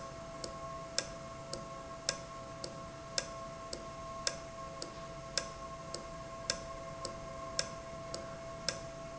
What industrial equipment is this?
valve